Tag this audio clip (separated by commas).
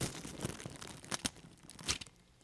crinkling